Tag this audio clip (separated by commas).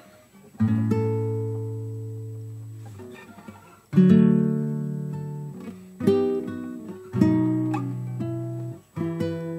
Music, Acoustic guitar, Musical instrument, Strum, Plucked string instrument, Guitar